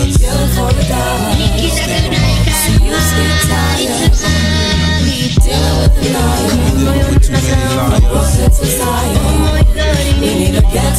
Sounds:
music, hip hop music

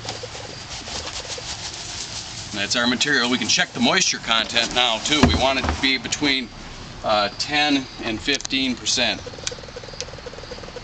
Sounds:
speech

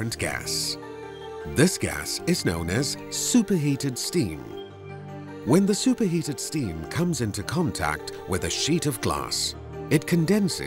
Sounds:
music, speech

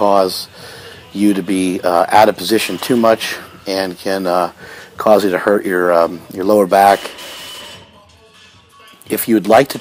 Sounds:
speech

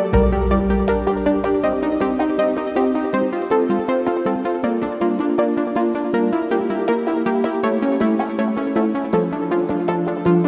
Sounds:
music

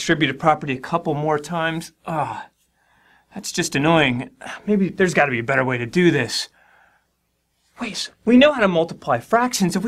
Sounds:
speech, narration

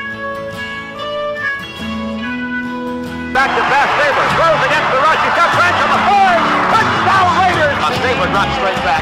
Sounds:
music, speech

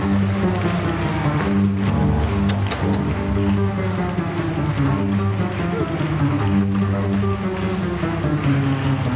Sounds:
playing double bass

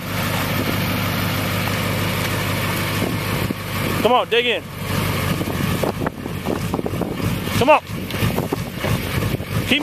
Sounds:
speech, vehicle

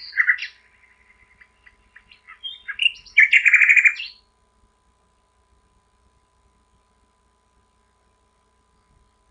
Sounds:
bird, bird vocalization, tweet

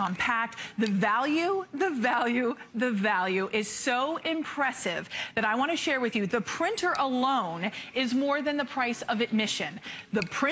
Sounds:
speech

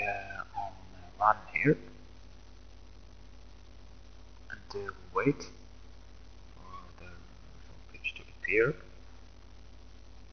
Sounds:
speech

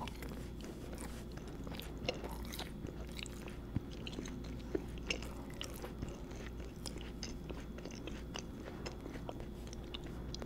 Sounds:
people eating apple

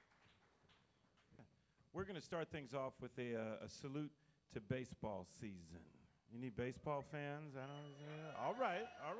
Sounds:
speech

